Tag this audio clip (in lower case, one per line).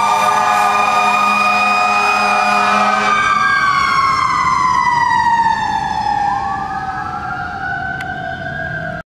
fire engine
truck
vehicle